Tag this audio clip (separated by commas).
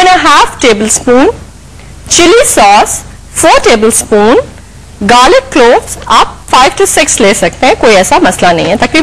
Speech